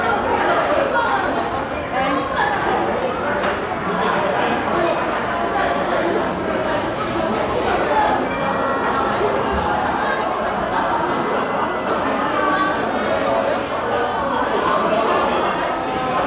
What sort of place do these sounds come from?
crowded indoor space